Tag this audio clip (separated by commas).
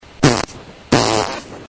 Fart